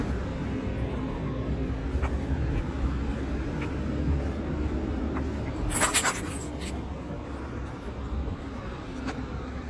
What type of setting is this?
street